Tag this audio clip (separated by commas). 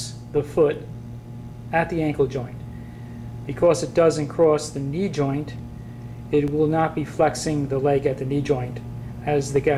inside a small room, Speech